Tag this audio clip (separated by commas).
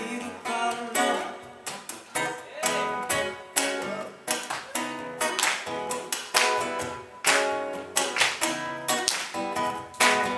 Music